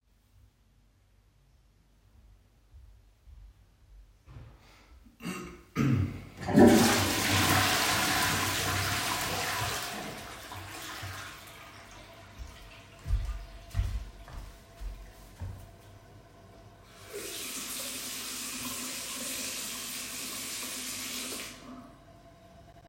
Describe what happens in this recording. The toilet is flushed. Shortly afterwards some steps can be heard and then water runs in the sink.